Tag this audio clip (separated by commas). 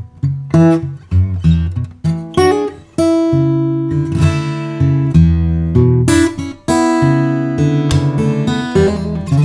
Guitar, Strum, Music, Plucked string instrument, Musical instrument